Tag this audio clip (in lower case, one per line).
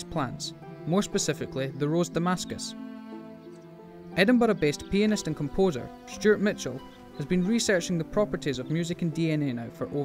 music
speech